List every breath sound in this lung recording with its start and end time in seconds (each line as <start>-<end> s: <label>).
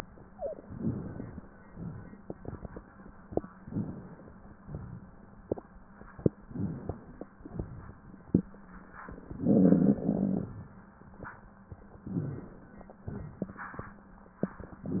0.00-0.67 s: exhalation
0.21-0.71 s: wheeze
0.70-1.70 s: inhalation
1.74-3.40 s: exhalation
3.60-4.62 s: inhalation
4.65-6.01 s: exhalation
6.41-7.33 s: inhalation
7.43-8.51 s: exhalation
11.98-13.06 s: inhalation
13.07-14.86 s: exhalation